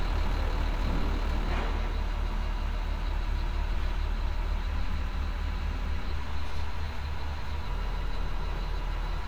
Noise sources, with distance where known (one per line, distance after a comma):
large-sounding engine, near